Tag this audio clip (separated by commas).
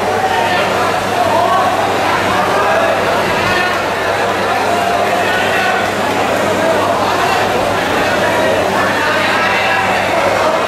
Speech, inside a public space